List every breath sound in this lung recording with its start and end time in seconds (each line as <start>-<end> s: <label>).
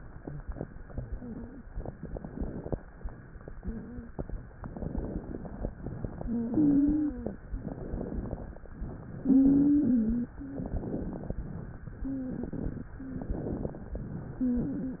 1.84-2.78 s: inhalation
1.84-2.78 s: crackles
4.65-5.64 s: inhalation
4.65-5.64 s: crackles
5.77-6.80 s: exhalation
6.24-7.23 s: wheeze
7.59-8.58 s: inhalation
7.59-8.58 s: crackles
8.86-9.97 s: exhalation
9.30-10.29 s: wheeze
10.38-10.74 s: wheeze
10.49-11.48 s: inhalation
10.49-11.48 s: crackles
12.05-12.41 s: wheeze
12.33-12.95 s: exhalation
12.98-13.34 s: wheeze
13.05-14.04 s: inhalation
13.05-14.04 s: crackles
14.40-15.00 s: wheeze